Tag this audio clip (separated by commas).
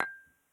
Glass, home sounds, dishes, pots and pans, Chink